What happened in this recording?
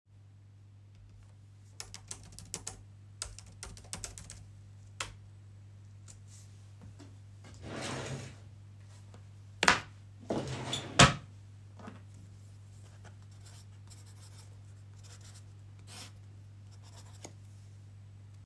I type on my laptop, open the drawer, take out a notepad and place it on the table, take a pencil which was lying on my desk and write on the notepad.